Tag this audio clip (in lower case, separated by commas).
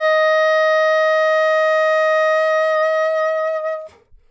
wind instrument, musical instrument, music